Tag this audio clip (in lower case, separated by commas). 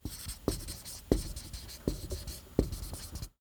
writing, home sounds